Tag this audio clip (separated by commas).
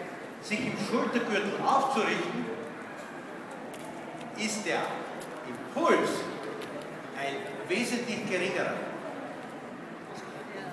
Animal, Clip-clop, Speech